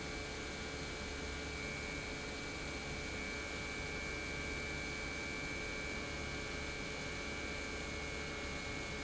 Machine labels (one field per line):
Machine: pump